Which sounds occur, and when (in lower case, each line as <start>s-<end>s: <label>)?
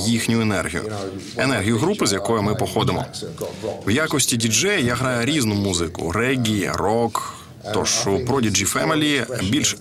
0.0s-7.1s: male speech
0.0s-9.8s: background noise
0.0s-9.8s: television
3.4s-3.8s: breathing
7.1s-7.6s: breathing
7.6s-9.8s: male speech
8.2s-8.3s: tick